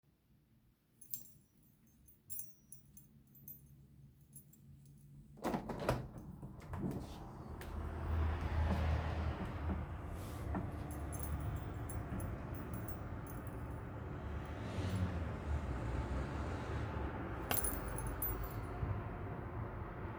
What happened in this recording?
I had my keychain in my hand, then I opened the window.